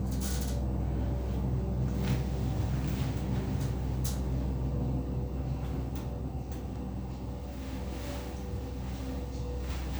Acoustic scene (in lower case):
elevator